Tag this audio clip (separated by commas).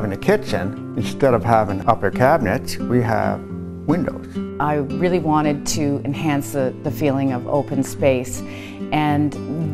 Speech, Music